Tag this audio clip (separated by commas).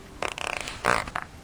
Fart